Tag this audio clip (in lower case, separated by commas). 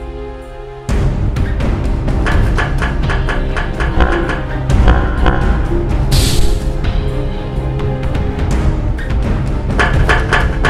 clatter, music